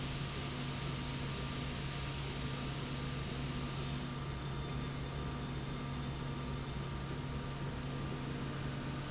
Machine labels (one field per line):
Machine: slide rail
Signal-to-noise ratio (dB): -6 dB